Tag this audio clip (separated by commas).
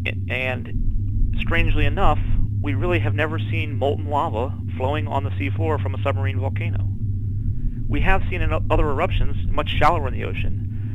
volcano explosion